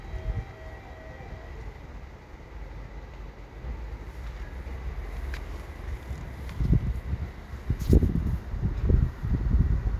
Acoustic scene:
residential area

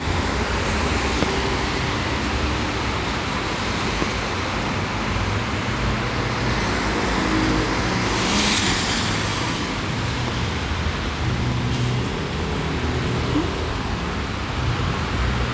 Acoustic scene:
street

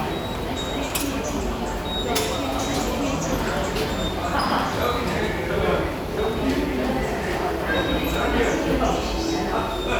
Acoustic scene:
subway station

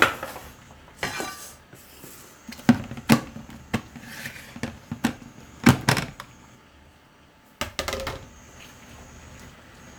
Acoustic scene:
kitchen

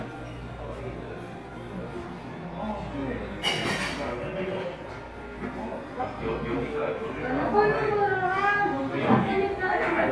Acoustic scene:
cafe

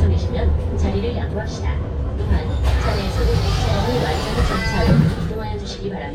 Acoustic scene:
bus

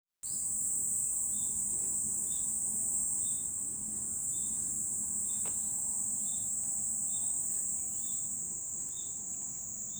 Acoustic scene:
park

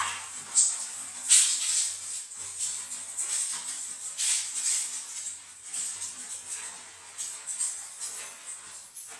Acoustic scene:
restroom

